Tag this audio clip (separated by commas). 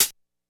Percussion, Hi-hat, Cymbal, Music, Musical instrument